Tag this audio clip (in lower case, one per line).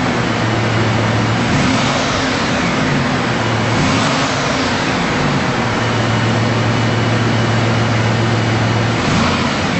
car
vehicle